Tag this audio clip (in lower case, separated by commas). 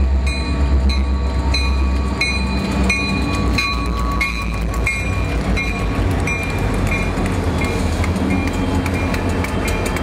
train wagon, vehicle, train, outside, urban or man-made